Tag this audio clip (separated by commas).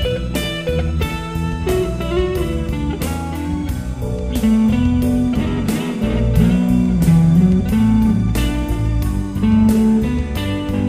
Guitar, Music, Musical instrument, Plucked string instrument